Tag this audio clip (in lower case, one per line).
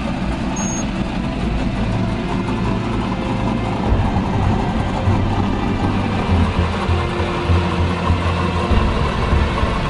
vehicle
car passing by
car